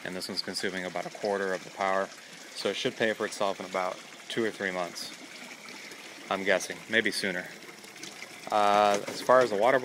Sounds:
Water, faucet

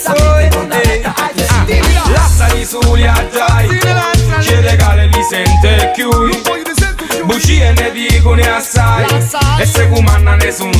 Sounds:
Music

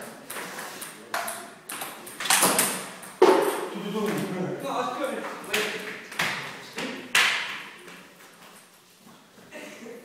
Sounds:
Speech

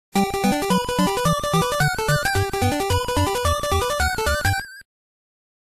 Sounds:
Theme music, Music

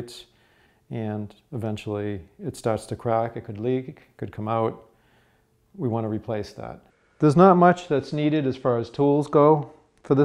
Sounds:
Speech

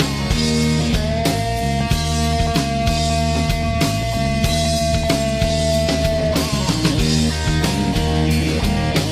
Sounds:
Music, Musical instrument, Plucked string instrument, Guitar, Bass guitar, playing bass guitar

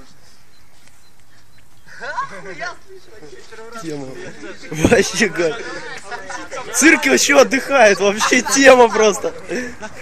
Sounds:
Speech

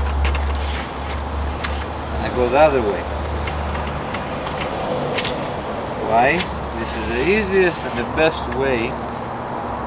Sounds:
Tools, Speech

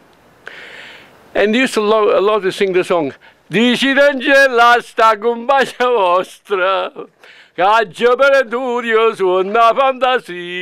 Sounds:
Speech

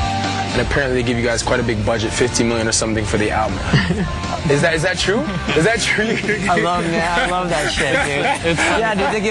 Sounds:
Music, Speech

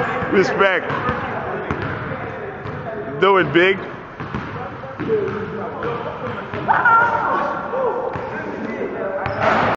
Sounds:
Speech, Basketball bounce

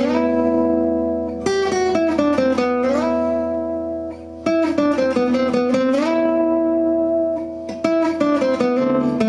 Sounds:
Guitar, Plucked string instrument, Acoustic guitar, Musical instrument, Music

